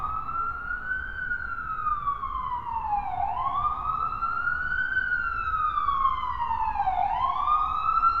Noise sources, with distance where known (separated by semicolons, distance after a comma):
siren